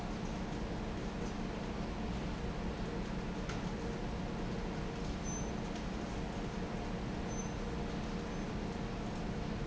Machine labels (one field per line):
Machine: fan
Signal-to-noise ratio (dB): -6 dB